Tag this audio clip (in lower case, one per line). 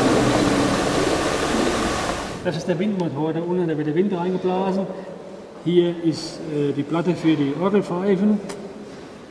speech